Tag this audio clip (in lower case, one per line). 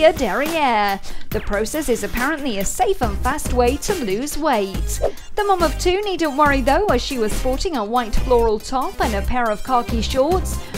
speech
music